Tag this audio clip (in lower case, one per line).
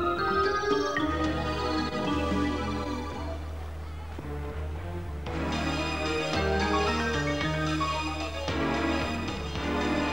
music